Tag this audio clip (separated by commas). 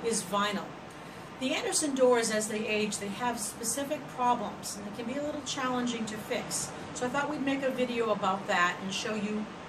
Speech